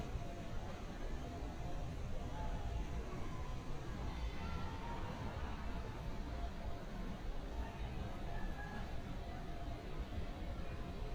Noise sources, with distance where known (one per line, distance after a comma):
person or small group talking